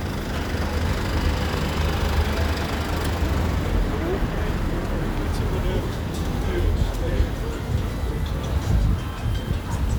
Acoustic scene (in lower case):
residential area